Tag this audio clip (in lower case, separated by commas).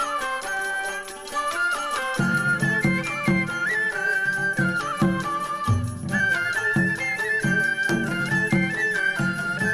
music, percussion